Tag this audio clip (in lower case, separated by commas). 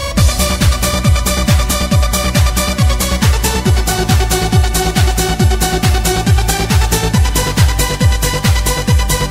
techno, music, electronic music